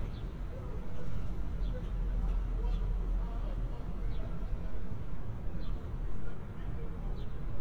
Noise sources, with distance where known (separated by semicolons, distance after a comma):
unidentified human voice